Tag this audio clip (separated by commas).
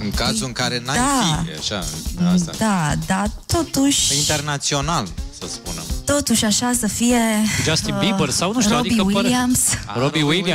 Music, Speech